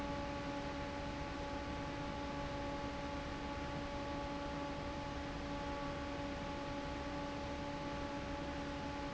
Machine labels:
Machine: fan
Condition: normal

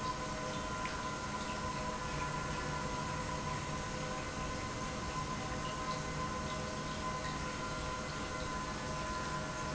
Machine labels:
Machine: pump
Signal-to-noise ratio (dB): -6 dB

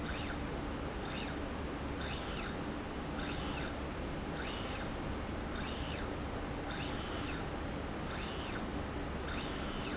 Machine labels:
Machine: slide rail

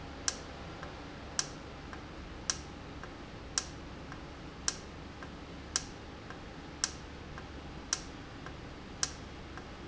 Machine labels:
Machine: valve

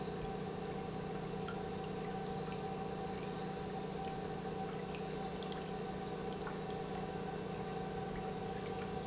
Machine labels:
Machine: pump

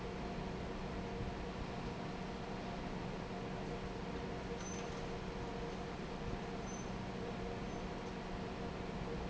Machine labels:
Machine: fan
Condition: normal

